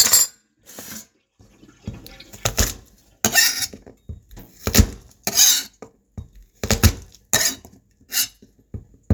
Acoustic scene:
kitchen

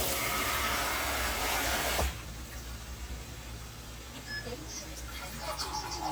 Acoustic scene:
kitchen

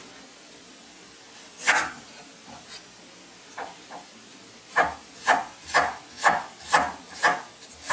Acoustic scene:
kitchen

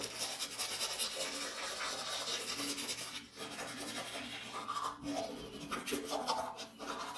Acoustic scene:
restroom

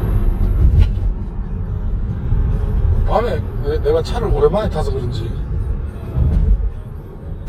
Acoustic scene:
car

